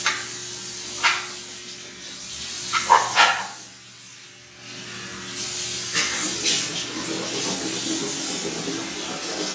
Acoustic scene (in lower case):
restroom